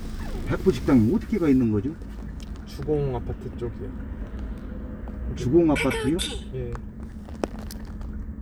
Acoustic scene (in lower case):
car